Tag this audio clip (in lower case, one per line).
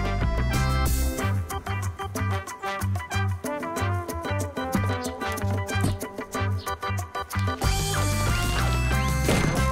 music